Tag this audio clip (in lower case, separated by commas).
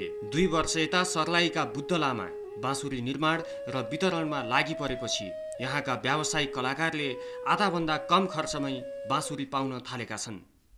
speech, music